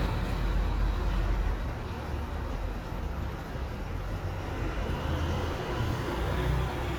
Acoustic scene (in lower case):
residential area